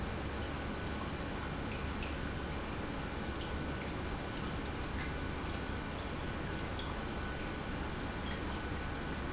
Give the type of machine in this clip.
pump